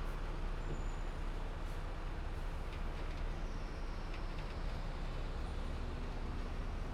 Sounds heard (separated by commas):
bus brakes, bus engine accelerating, bus engine idling, bus compressor, bus